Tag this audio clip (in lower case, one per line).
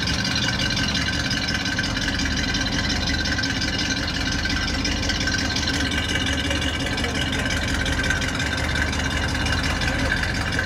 car
motor vehicle (road)
vehicle
speech